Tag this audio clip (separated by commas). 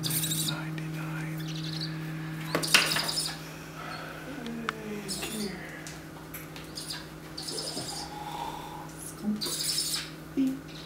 Bird, Animal, Speech